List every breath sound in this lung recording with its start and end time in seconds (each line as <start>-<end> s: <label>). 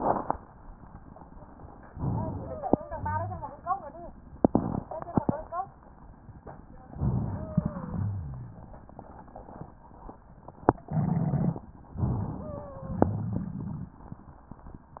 1.90-2.83 s: inhalation
2.33-2.96 s: wheeze
2.85-3.55 s: exhalation
2.85-3.55 s: rhonchi
6.91-7.61 s: rhonchi
6.91-7.86 s: inhalation
7.30-7.93 s: wheeze
7.91-8.71 s: exhalation
7.91-8.71 s: rhonchi
12.01-12.81 s: inhalation
12.43-13.05 s: wheeze
12.94-13.98 s: exhalation